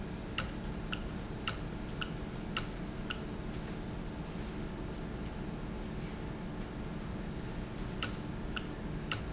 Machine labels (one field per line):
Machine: valve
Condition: normal